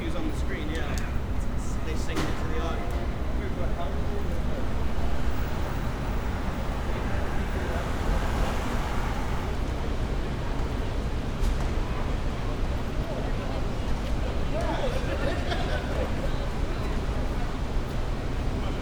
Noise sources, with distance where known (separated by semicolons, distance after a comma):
engine of unclear size; unidentified human voice